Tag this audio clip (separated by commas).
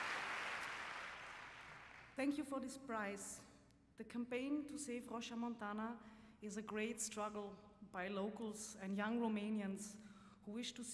woman speaking, Speech, Narration